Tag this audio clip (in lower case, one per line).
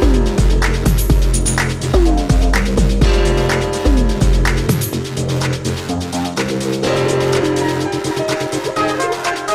music